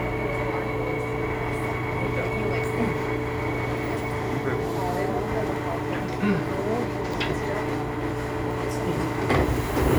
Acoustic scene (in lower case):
subway train